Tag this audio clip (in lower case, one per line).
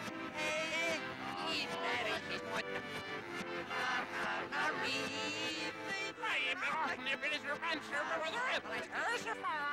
speech
music